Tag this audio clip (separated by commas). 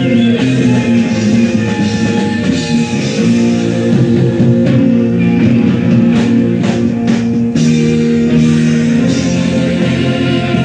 Music, Rock and roll